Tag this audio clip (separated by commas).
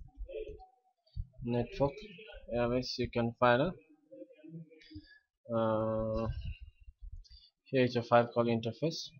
Speech